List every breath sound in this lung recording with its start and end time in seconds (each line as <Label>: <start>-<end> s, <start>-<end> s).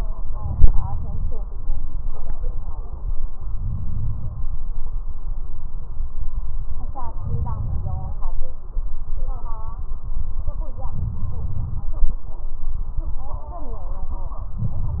Inhalation: 0.29-1.31 s, 3.50-4.51 s, 7.23-8.24 s, 10.92-11.94 s, 14.56-15.00 s
Crackles: 0.29-1.31 s, 7.23-8.24 s, 10.92-11.94 s